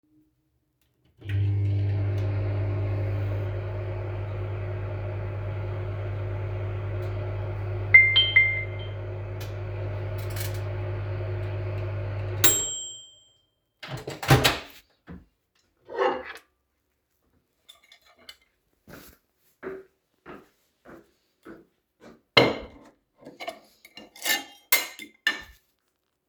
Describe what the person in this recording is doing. I turned on the microwave to heat up some food, while I was waiting, I received a notification on my phone. After that, I took my plate and went to the table so I can start my lunch.